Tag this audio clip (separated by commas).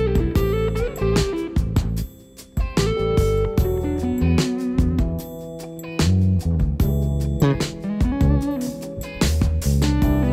Bass guitar